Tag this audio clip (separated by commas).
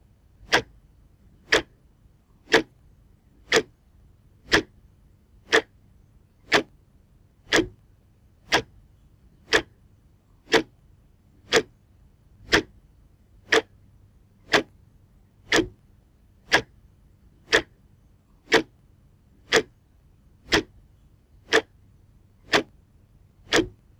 Mechanisms, Tick-tock, Clock